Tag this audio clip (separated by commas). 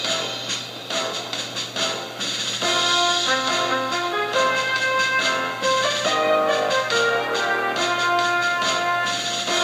Music